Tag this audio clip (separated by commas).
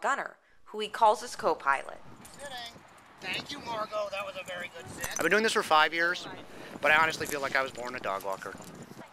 Speech